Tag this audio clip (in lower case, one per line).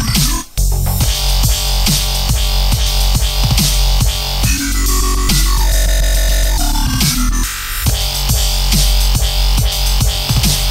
music